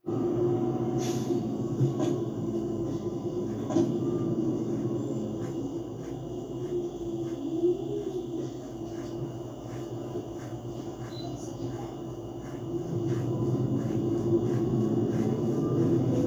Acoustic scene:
bus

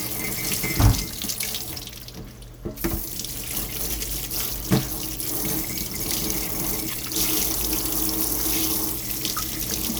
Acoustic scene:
kitchen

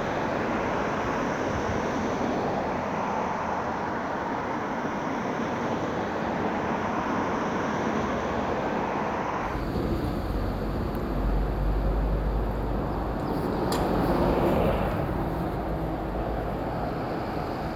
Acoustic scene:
street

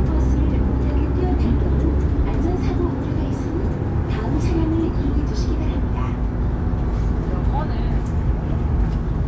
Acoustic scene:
bus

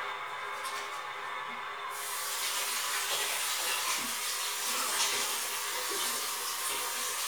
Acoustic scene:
restroom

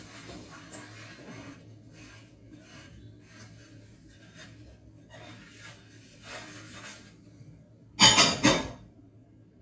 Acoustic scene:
kitchen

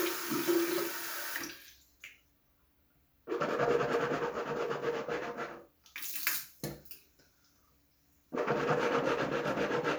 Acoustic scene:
restroom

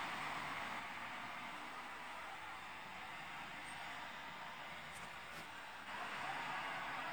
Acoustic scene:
street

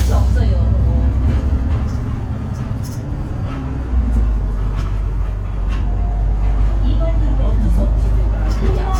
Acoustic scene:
bus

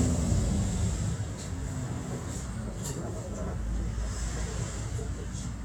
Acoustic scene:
bus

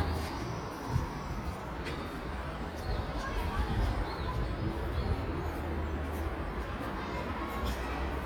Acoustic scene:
park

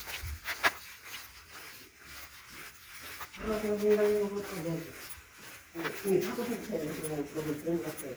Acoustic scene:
elevator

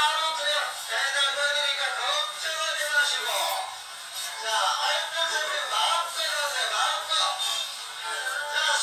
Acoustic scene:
crowded indoor space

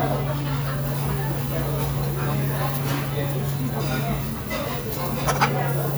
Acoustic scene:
restaurant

